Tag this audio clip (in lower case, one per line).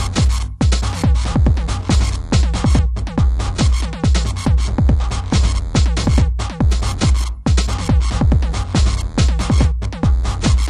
electronic music
music
techno
sampler